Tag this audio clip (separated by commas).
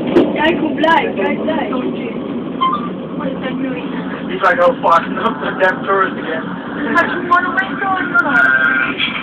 Speech